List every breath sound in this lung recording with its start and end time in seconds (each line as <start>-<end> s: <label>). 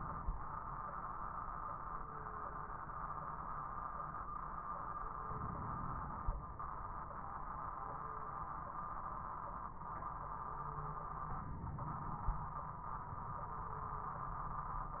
5.27-6.37 s: inhalation
11.35-12.45 s: inhalation